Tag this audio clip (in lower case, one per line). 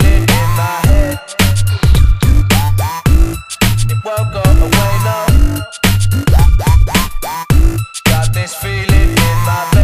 hip hop music
music